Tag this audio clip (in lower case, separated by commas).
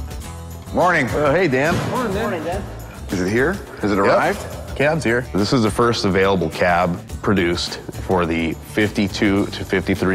music, speech